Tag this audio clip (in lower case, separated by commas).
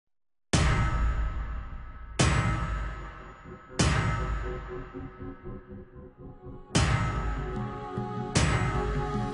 music